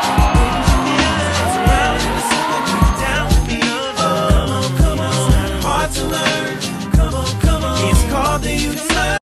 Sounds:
music, rhythm and blues

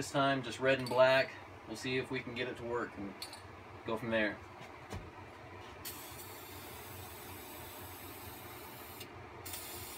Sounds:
spray, speech

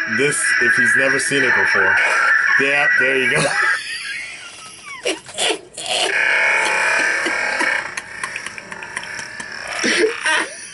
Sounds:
laughter, speech, inside a small room, music

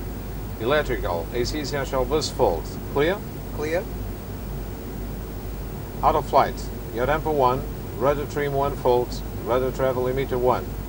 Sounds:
vehicle, speech

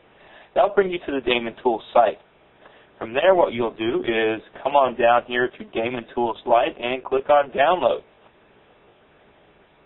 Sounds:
speech

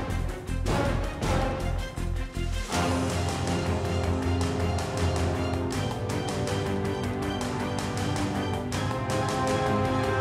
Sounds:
theme music, music

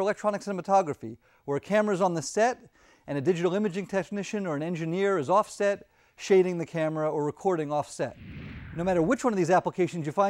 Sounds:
speech

